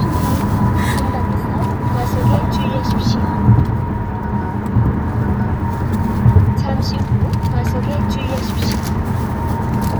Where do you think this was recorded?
in a car